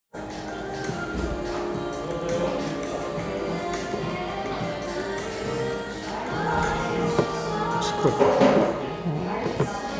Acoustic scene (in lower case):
cafe